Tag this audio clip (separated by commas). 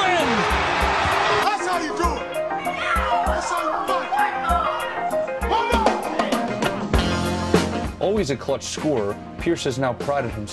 Speech, Music